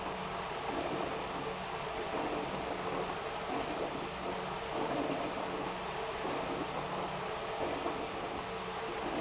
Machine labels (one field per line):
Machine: pump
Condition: abnormal